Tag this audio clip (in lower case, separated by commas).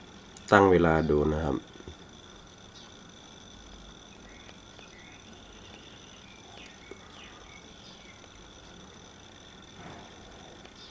speech